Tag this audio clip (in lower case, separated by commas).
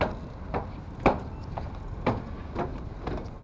walk